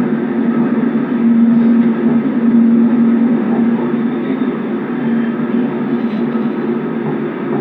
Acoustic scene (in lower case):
subway train